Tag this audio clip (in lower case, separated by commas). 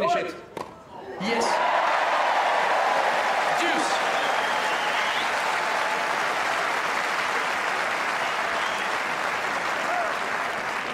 playing tennis